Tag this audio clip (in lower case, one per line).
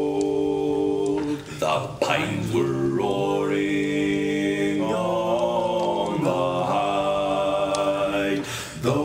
speech